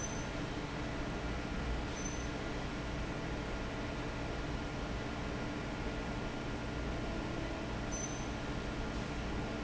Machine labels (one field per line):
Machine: fan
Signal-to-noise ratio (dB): -6 dB